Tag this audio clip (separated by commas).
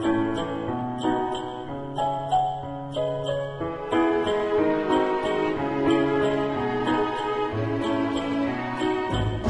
Music, Theme music, Dance music